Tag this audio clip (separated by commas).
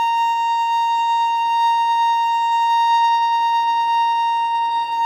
Musical instrument, Bowed string instrument, Music